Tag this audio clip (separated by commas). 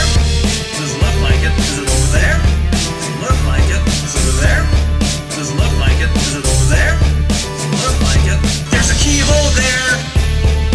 Music